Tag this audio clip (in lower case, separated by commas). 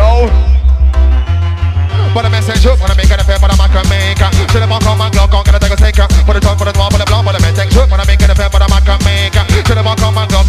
music